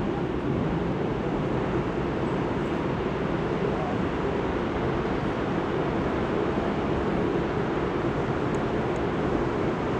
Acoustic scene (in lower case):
subway train